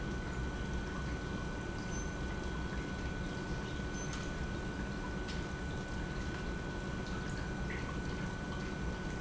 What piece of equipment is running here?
pump